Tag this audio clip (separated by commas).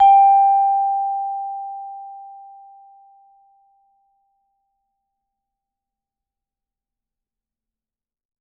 Mallet percussion, Music, Musical instrument, Percussion